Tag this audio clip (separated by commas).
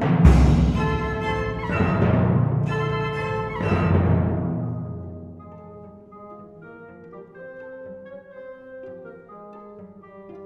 Drum, Orchestra, Cello, Musical instrument, Pizzicato, Percussion, Timpani, Music, Drum kit